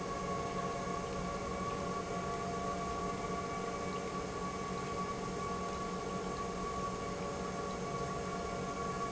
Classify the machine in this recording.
pump